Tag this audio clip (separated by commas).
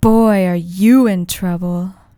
Human voice, woman speaking, Speech